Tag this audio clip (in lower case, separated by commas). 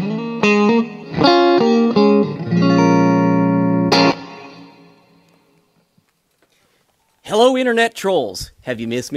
strum, musical instrument, speech, plucked string instrument, electric guitar, music, guitar